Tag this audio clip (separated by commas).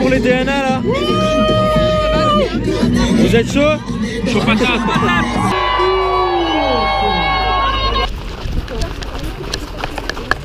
Music, Speech, Run